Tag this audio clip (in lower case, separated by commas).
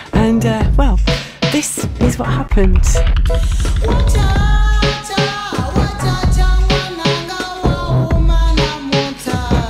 music, speech